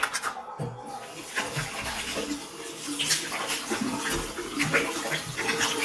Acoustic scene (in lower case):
restroom